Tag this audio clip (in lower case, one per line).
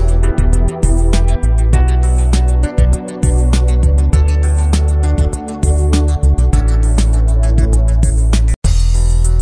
music